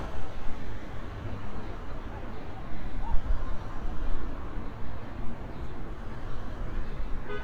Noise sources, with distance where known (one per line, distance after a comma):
medium-sounding engine
car horn, near